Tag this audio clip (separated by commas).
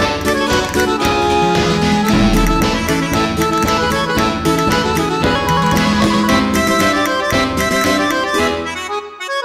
Music